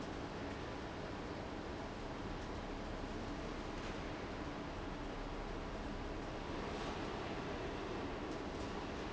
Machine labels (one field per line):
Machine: fan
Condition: abnormal